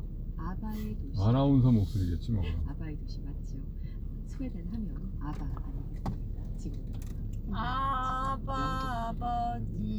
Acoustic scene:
car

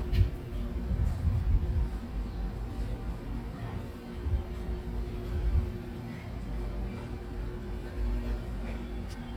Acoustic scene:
residential area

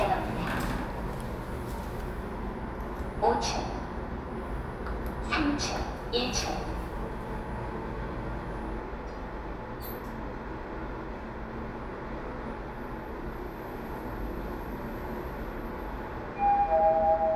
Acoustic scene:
elevator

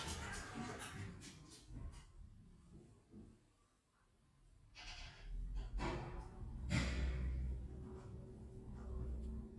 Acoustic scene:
elevator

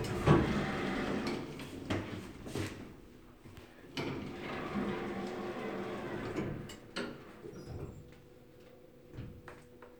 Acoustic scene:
elevator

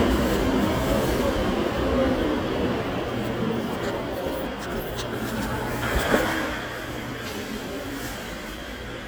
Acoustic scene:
subway station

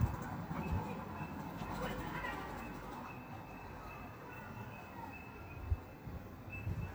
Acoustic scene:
park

